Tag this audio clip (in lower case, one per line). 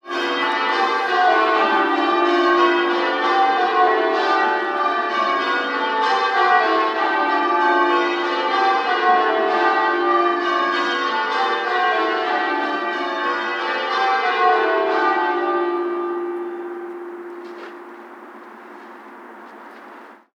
church bell
bell